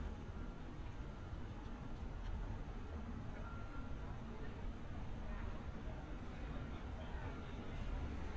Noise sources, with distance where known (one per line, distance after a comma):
reverse beeper, far
person or small group talking